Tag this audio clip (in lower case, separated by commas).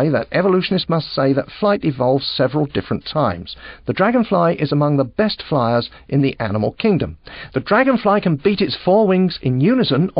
speech